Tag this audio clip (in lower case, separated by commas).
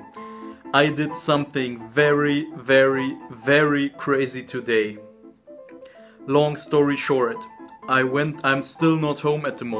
speech, music